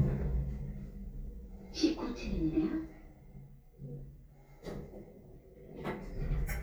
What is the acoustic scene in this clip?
elevator